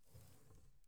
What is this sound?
wicker drawer opening